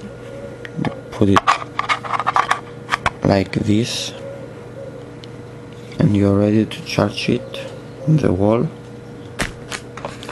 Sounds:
inside a small room, speech

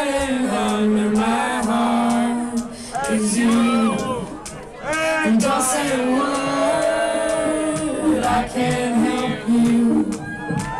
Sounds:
house music, music

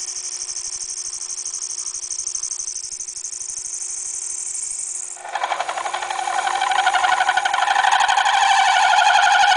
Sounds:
tools

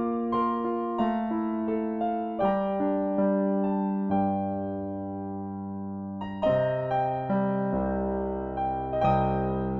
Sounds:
music

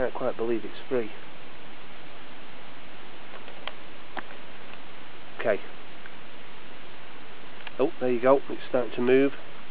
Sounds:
speech

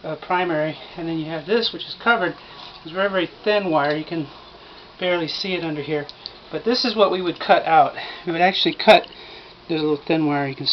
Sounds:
speech

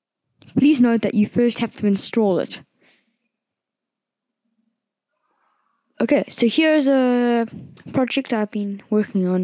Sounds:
speech

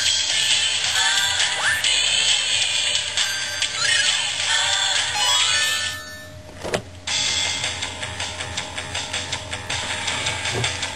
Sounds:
music, door

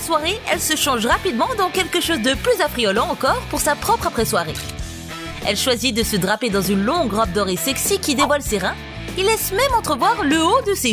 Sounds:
music, speech

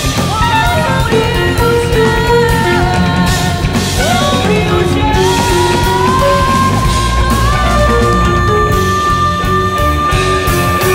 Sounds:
xylophone, guitar, jazz, bowed string instrument, singing, music, psychedelic rock, musical instrument, drum

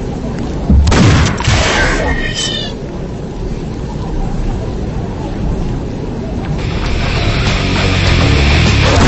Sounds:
music, inside a large room or hall

